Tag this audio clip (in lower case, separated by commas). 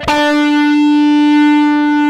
guitar, plucked string instrument, music, musical instrument, electric guitar